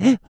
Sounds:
Breathing, Respiratory sounds

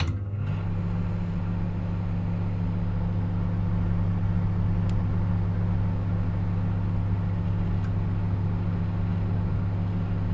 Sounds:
home sounds, Microwave oven

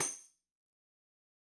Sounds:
Percussion, Musical instrument, Music, Tambourine

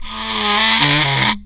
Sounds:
Wood

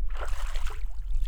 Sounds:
Splash, Water, Liquid

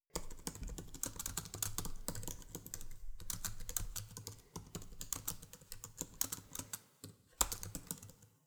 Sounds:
Domestic sounds, Typing

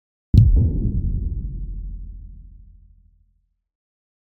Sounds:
Explosion, Boom

